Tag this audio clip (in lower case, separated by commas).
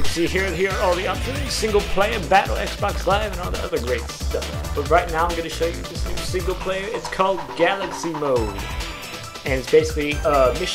music, speech